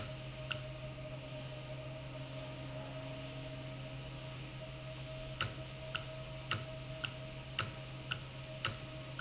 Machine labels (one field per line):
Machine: valve